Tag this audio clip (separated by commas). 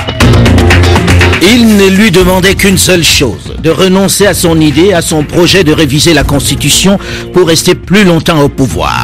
Music, Speech